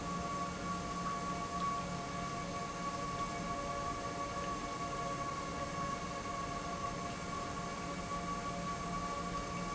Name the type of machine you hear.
pump